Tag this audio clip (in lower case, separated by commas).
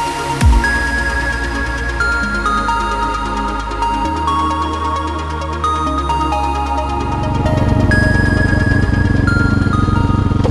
vehicle, music, motor vehicle (road)